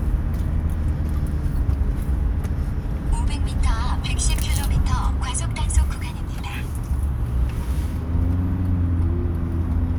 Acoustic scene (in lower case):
car